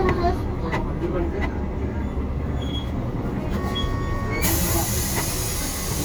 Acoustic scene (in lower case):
bus